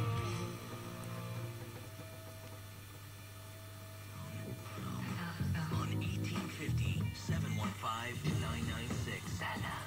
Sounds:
radio, music, speech

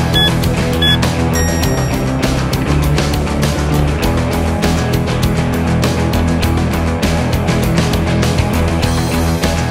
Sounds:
music

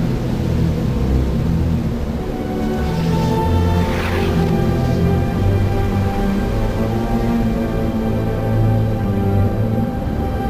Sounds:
sound effect

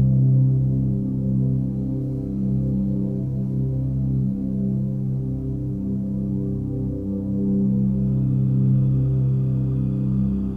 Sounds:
music

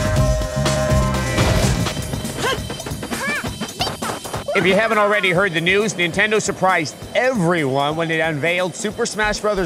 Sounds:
speech, music

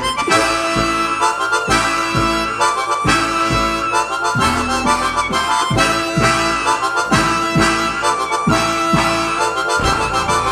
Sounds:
wind instrument, harmonica

